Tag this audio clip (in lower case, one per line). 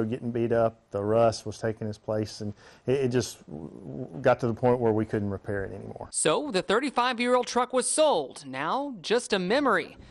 speech